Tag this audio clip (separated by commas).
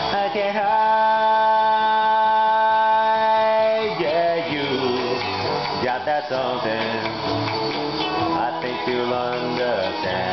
Music, Singing, inside a large room or hall